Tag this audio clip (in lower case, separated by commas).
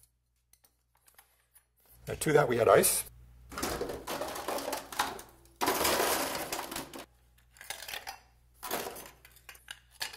speech, inside a small room